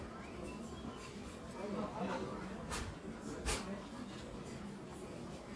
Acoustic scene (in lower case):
crowded indoor space